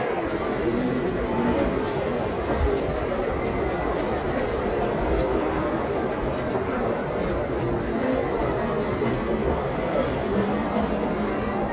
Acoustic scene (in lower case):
crowded indoor space